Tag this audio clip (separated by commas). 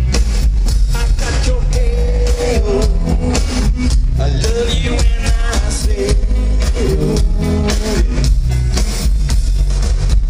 Music, Funk